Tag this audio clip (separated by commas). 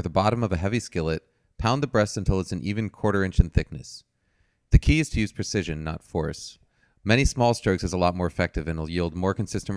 Speech